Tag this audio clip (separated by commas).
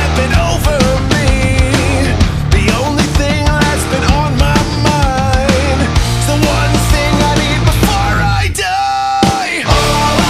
Music